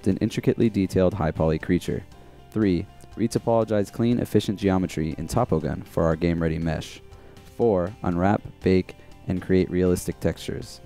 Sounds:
Music, Speech

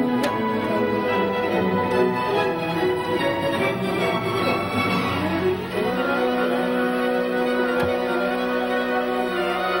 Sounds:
Music, Classical music

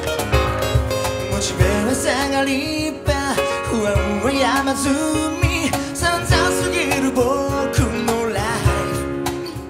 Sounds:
Music

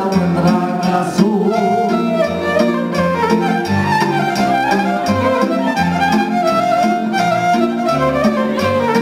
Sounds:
Music

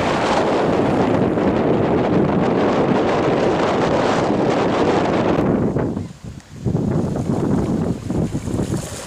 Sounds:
Boat, sailing, Wind, Wind noise (microphone), Sailboat

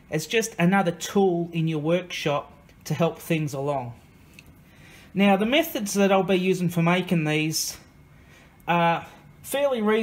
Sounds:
Speech

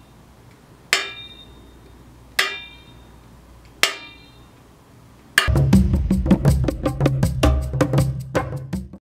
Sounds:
Music

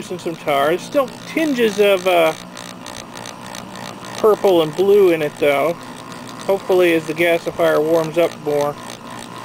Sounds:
Speech

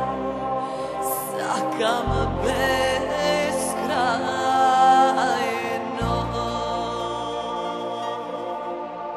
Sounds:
Music

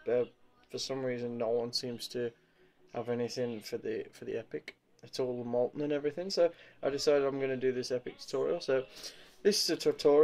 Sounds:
Speech

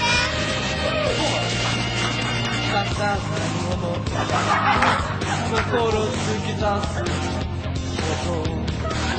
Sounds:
Music, Speech

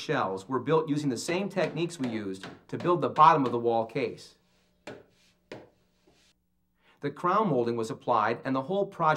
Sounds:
Speech

